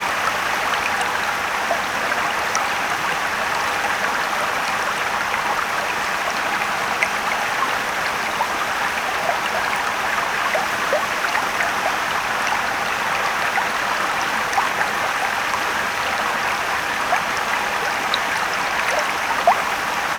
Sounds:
water, stream

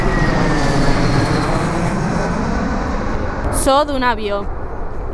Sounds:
fixed-wing aircraft, aircraft, vehicle

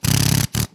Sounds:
drill, power tool, tools

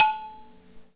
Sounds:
dishes, pots and pans, cutlery, domestic sounds

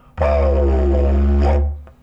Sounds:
musical instrument, music

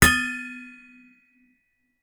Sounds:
hammer, tools

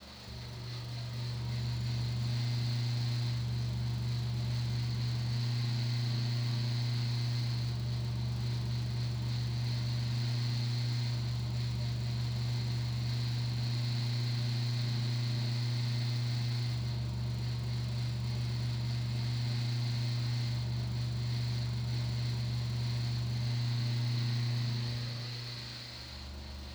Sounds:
mechanical fan, mechanisms

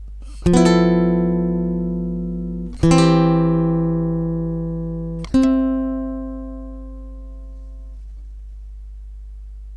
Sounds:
plucked string instrument, music, guitar, musical instrument

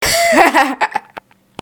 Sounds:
human voice, laughter

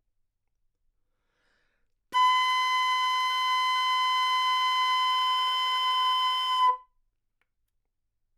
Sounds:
musical instrument, music, wind instrument

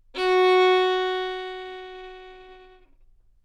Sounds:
music, musical instrument, bowed string instrument

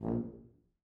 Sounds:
brass instrument, music, musical instrument

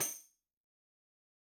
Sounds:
tambourine, musical instrument, percussion, music

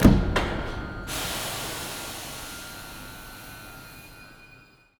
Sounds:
underground, vehicle, rail transport

